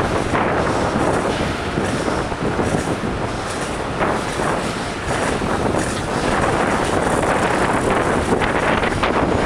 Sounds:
bicycle

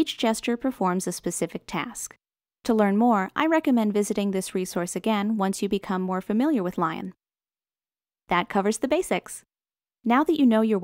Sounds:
speech

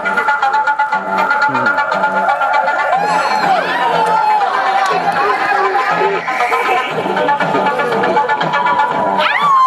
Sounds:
music
speech

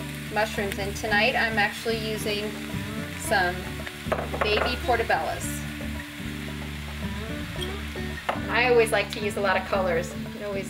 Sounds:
music
inside a small room
speech

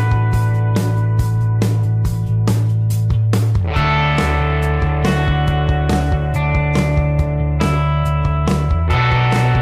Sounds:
music

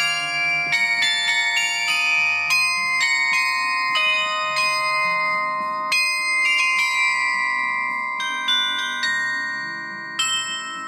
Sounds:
wind chime

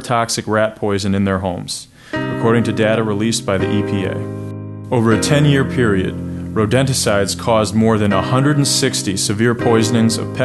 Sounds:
speech
music

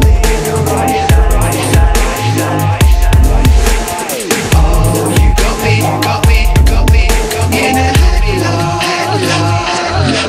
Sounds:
music
dubstep
electronic music

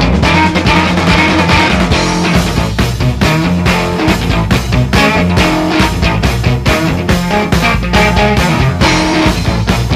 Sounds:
music

